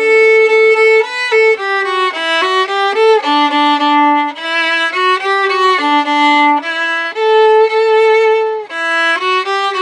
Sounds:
musical instrument, music, violin

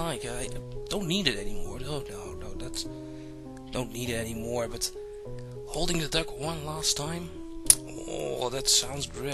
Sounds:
speech, music

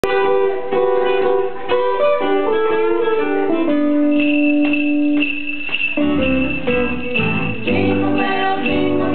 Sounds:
jingle

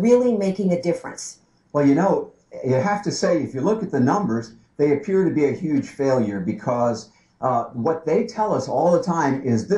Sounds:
speech

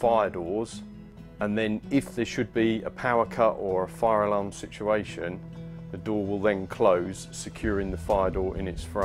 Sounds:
music, speech

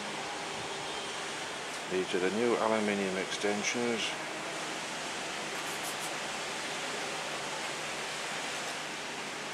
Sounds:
wind, wind noise (microphone)

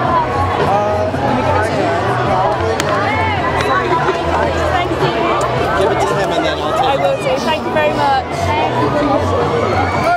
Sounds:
speech

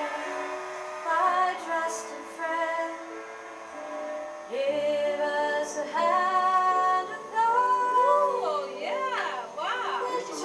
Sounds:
inside a small room, singing, music

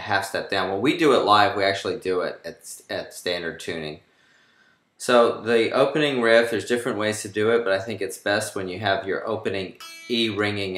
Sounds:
speech, music, guitar

